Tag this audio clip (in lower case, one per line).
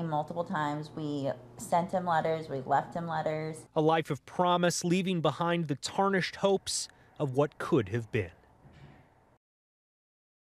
female speech